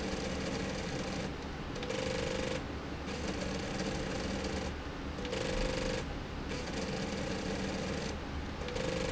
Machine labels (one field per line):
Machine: slide rail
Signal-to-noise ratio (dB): -6 dB